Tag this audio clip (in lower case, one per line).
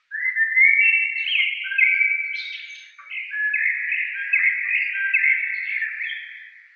animal
wild animals
bird